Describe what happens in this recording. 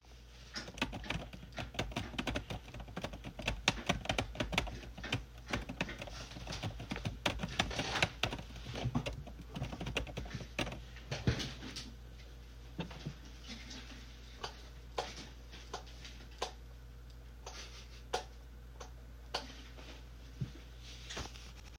I wrote an email, then walked to the book shelf and turned off, turned on the light